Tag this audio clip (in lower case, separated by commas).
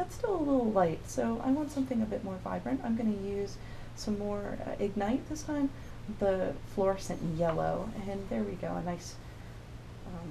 inside a small room, speech